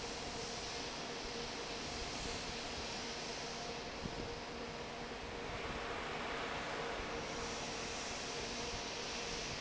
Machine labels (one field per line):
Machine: fan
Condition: normal